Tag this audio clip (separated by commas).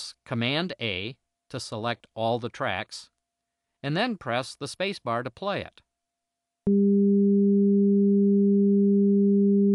Sine wave